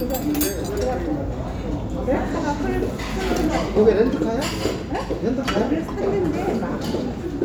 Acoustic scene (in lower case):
restaurant